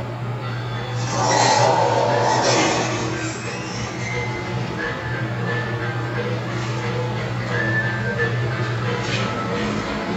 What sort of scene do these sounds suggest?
elevator